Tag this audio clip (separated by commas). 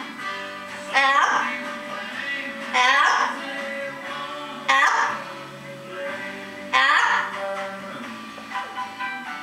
Music